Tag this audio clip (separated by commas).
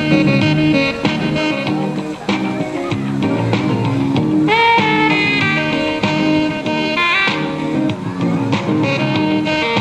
Music